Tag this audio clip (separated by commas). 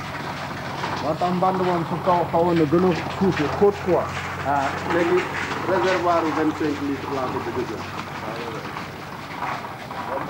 Bicycle, Speech, Vehicle